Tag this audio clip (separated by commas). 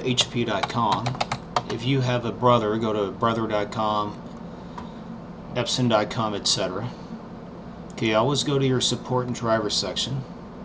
Speech